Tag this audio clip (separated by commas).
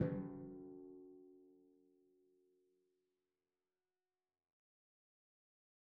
Musical instrument, Drum, Music, Percussion